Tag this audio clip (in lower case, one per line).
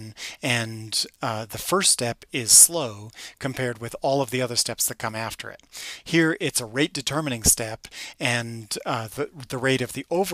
speech